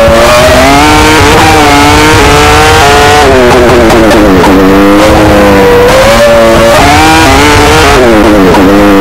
An engine is revving up quickly